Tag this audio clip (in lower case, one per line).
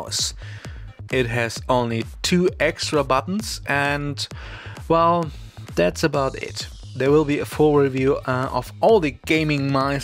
speech
music